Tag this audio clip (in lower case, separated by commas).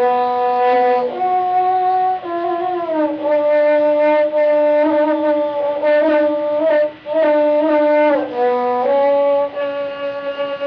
music, inside a small room, musical instrument, fiddle